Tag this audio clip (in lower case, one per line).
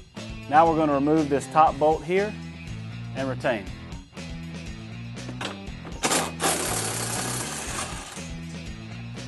speech
music